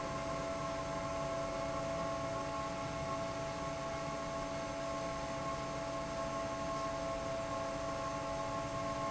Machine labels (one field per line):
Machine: fan